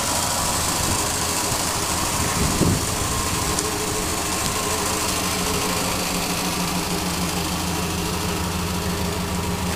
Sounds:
Vehicle

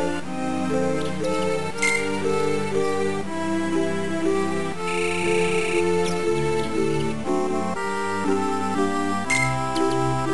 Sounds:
Music

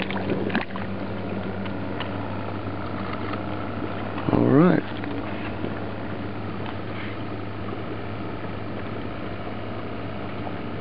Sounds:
Slosh, outside, rural or natural, Speech

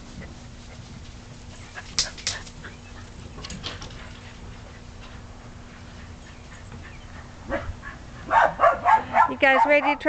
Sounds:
Speech

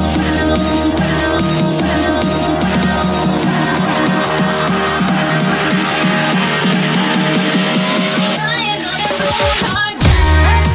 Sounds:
Music

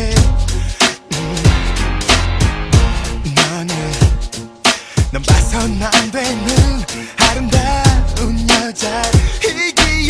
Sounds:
Music

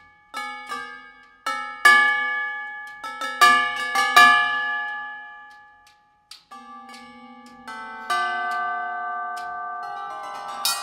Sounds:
Tubular bells

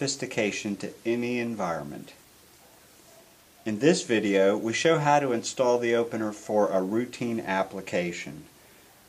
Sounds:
Speech

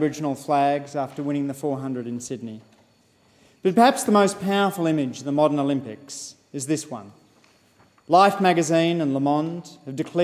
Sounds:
Narration, Speech, Male speech

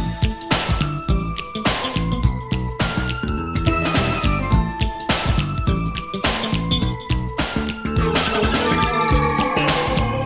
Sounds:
Music

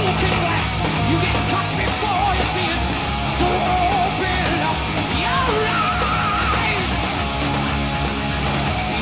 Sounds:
Music

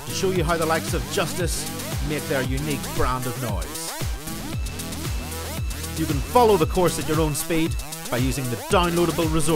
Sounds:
Music, Speech

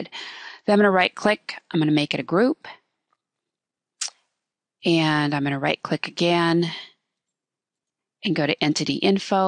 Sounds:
Speech

